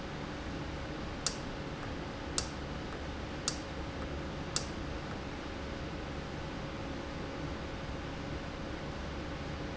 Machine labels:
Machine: valve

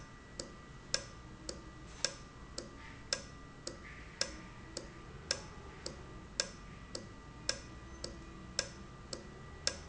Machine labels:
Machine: valve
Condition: normal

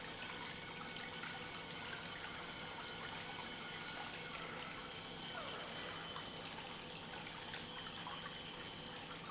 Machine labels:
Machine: pump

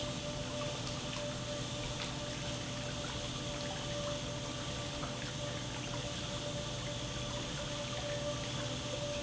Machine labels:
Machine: pump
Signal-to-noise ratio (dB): -6 dB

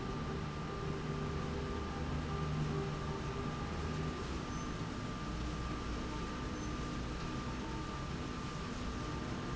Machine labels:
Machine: slide rail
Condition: normal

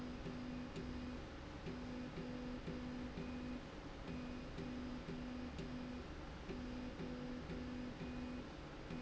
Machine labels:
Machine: slide rail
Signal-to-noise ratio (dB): 6 dB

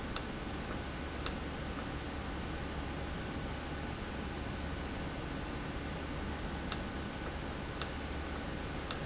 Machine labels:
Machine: valve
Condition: normal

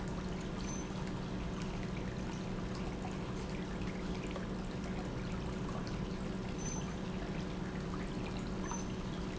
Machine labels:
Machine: pump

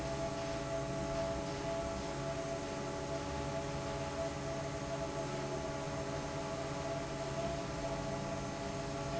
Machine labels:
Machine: fan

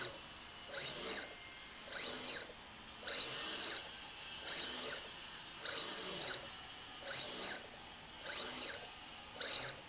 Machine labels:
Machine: slide rail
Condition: abnormal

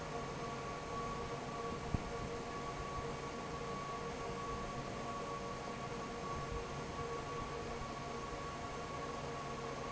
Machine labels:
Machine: fan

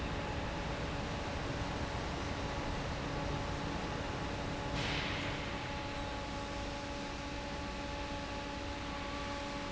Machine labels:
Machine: fan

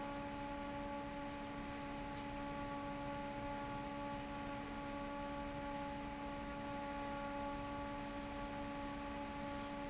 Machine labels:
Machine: fan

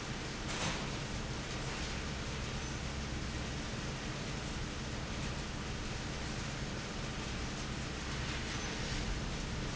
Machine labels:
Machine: fan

